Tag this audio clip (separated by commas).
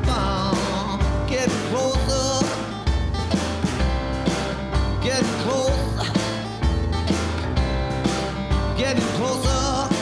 Rhythm and blues, Tender music, Music